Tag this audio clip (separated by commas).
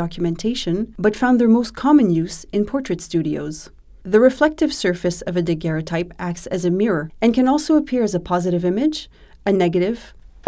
Speech